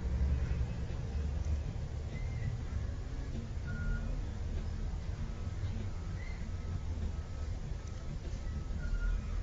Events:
[0.00, 9.42] music
[0.00, 9.42] truck
[6.15, 6.36] generic impact sounds
[7.80, 7.91] clicking

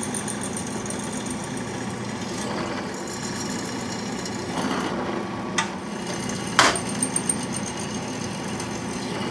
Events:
[0.00, 9.30] mechanisms
[5.49, 5.76] generic impact sounds
[6.54, 6.86] generic impact sounds

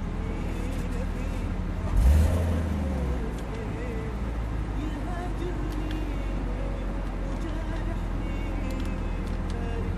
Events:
[0.00, 1.73] idling
[0.00, 9.95] car
[0.14, 1.62] male singing
[1.84, 2.59] vroom
[3.32, 3.57] tick
[3.41, 9.95] idling
[3.42, 4.21] male singing
[4.75, 6.98] male singing
[5.68, 5.94] tick
[6.98, 7.15] generic impact sounds
[7.22, 9.88] male singing
[7.28, 7.77] generic impact sounds
[8.66, 8.87] generic impact sounds
[9.27, 9.55] generic impact sounds

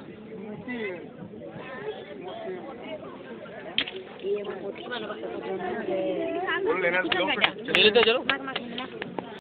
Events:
[0.00, 9.39] hubbub
[3.75, 3.97] generic impact sounds
[4.11, 4.86] generic impact sounds
[7.07, 7.16] tick
[7.39, 7.48] tick
[7.68, 7.79] tick
[7.97, 8.06] tick
[8.24, 8.36] tick
[8.50, 8.58] tick
[8.72, 8.82] tick
[8.96, 9.03] tick
[9.14, 9.23] tick

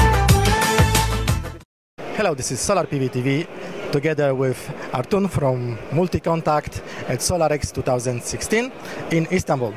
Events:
[0.00, 1.63] music
[1.95, 9.75] crowd
[2.11, 3.45] male speech
[3.88, 4.60] male speech
[4.60, 4.92] breathing
[4.90, 5.76] male speech
[5.90, 6.71] male speech
[6.79, 7.12] breathing
[7.05, 8.65] male speech
[8.77, 9.08] breathing
[9.00, 9.75] male speech

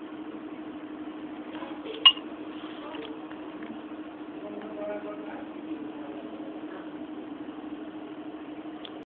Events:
[0.00, 9.03] mechanisms
[1.37, 1.66] surface contact
[2.01, 2.16] glass
[2.41, 2.81] surface contact
[2.75, 3.06] human voice
[2.89, 3.06] generic impact sounds
[3.23, 3.33] generic impact sounds
[3.56, 3.67] generic impact sounds
[4.37, 5.44] human voice
[4.54, 4.64] generic impact sounds
[5.84, 6.32] human voice
[6.60, 6.81] human voice
[8.79, 8.89] clicking

